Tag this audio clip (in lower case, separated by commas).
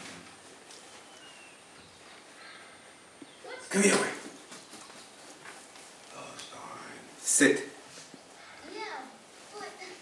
speech, animal